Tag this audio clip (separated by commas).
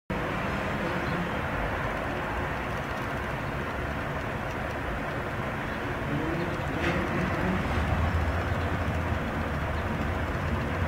Insect